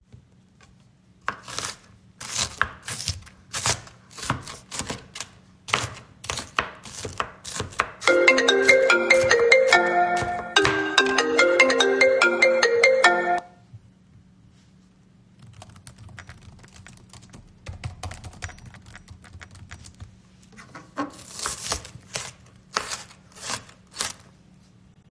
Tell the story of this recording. First, I was chopping some vegetables. While I was doing that, the phone rang. Then I started typing on my keyboard. After that, I went back to cutting the vegetables.